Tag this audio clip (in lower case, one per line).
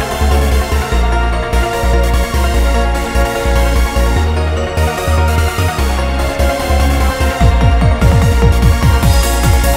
electronic music
techno
music